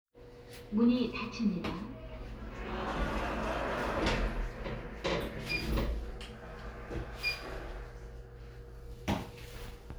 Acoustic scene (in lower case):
elevator